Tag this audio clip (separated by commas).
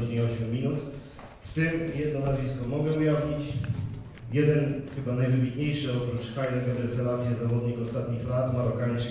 inside a small room, Speech